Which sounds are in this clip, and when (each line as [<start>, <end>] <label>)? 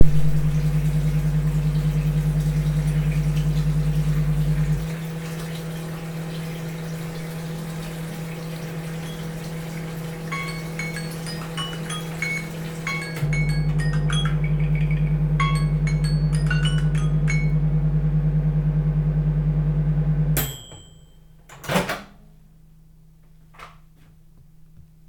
[0.00, 13.88] running water
[0.00, 20.93] microwave
[9.88, 18.27] phone ringing
[21.46, 22.17] door
[21.57, 22.19] microwave